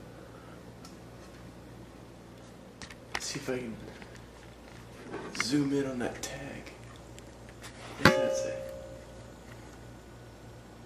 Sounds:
inside a small room, Speech

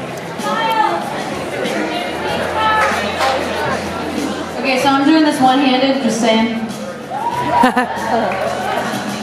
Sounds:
Speech, Music

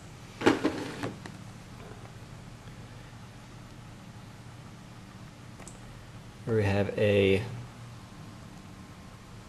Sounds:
Speech, inside a small room

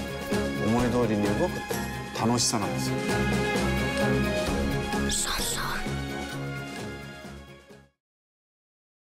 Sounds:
Music, Speech

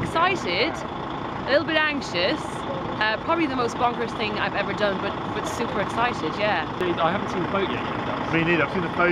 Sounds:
Vehicle, Speech

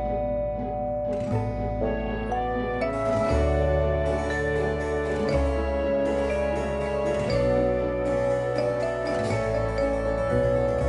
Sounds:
Music

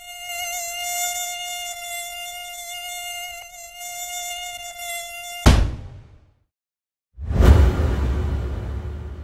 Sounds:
mosquito buzzing

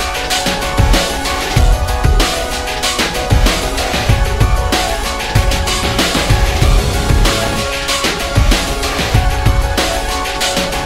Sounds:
Music

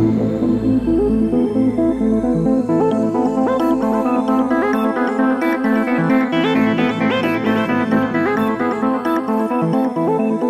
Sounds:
Music

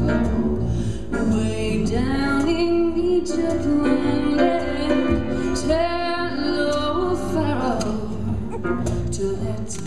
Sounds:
Female singing, Music

